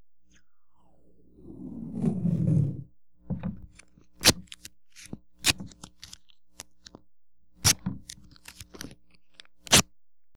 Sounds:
Packing tape, Tearing, home sounds

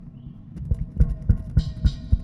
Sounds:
Tap

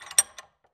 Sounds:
Tools

